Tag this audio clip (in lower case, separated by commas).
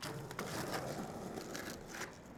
vehicle, skateboard